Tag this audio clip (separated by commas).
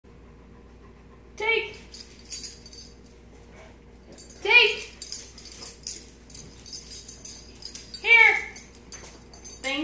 Speech, inside a large room or hall